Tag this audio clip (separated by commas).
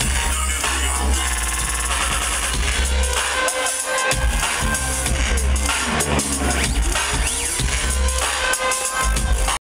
Sound effect, Music